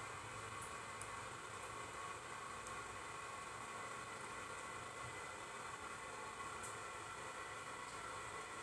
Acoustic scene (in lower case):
restroom